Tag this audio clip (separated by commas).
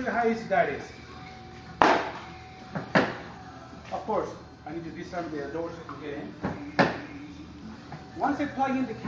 Speech